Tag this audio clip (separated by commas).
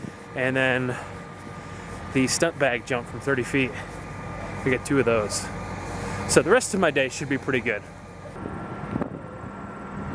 Speech, outside, rural or natural